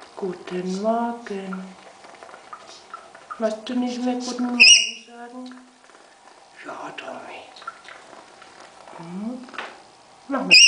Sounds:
parrot talking

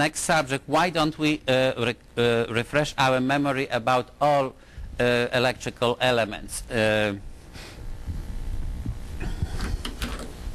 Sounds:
speech

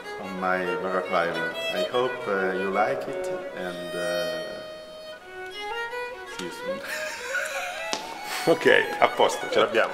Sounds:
musical instrument, music, violin, speech

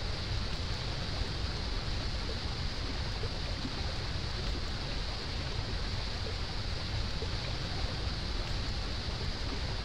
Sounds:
waterfall burbling, waterfall

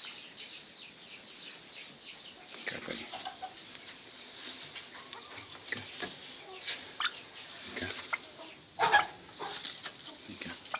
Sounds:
pheasant crowing

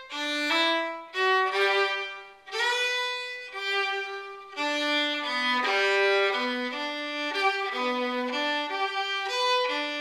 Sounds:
musical instrument, music, violin

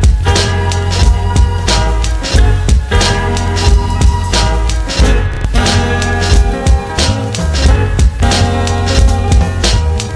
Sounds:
music

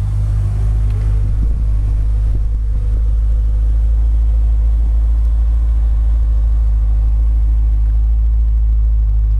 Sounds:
vehicle, car

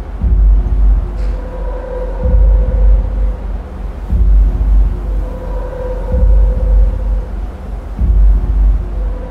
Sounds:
music

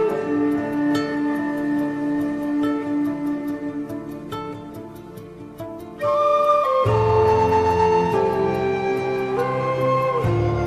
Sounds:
flute, music

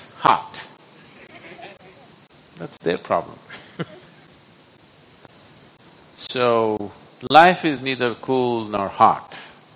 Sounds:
speech, inside a large room or hall

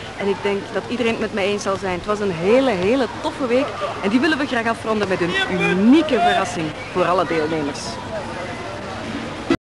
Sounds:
speech

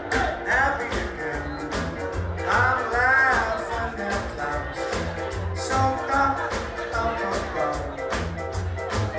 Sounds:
music, male singing

